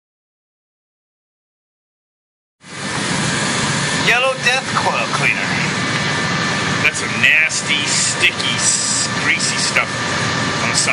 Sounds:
speech

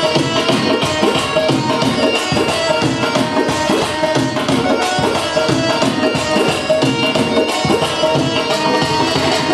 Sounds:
tabla, music, singing

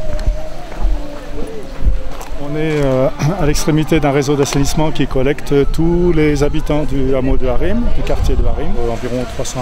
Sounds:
speech

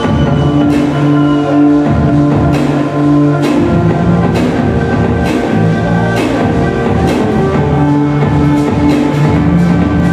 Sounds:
electronic music, techno, music

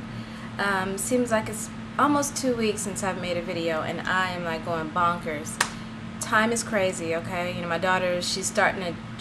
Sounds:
speech

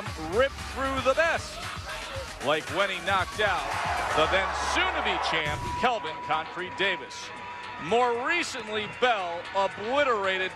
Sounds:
speech, music

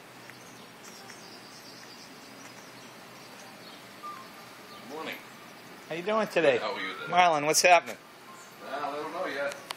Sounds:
environmental noise, speech

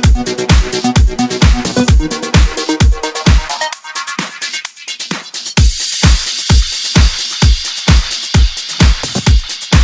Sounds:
electronic music, music, house music, electronica

